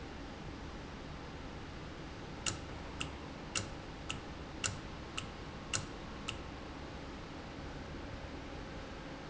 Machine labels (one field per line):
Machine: valve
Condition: normal